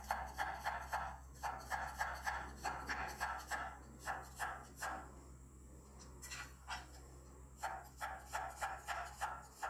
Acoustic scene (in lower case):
kitchen